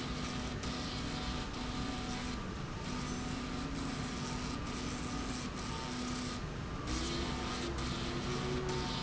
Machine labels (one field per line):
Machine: slide rail